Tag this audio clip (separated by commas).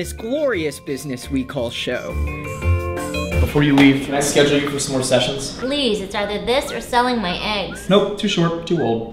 Music, Speech